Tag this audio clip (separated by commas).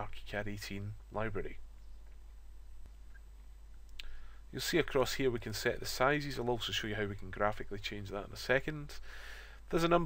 Speech